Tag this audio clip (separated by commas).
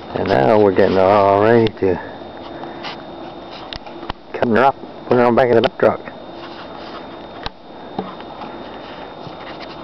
Speech, outside, urban or man-made